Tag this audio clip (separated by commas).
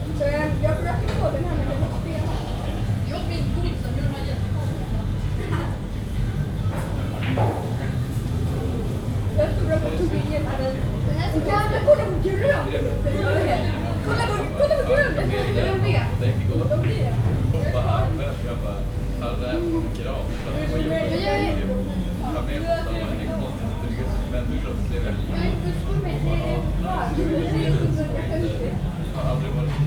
Chatter, Speech, Child speech, Male speech, Human group actions, Human voice